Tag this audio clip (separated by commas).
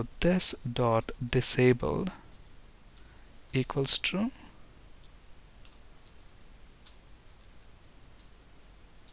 Clicking, Speech